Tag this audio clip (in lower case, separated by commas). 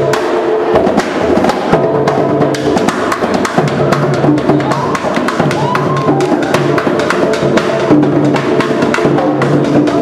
music, drum, musical instrument, inside a large room or hall